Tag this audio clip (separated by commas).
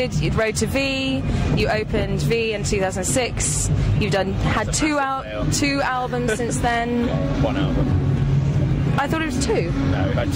Speech